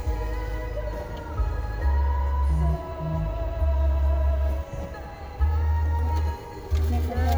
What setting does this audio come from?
car